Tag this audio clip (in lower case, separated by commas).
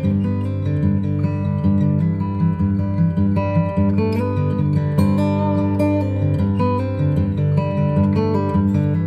guitar, acoustic guitar, strum, plucked string instrument, musical instrument, music